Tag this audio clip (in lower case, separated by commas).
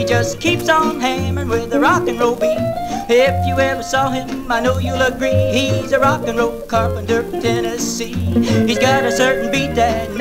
rock and roll, music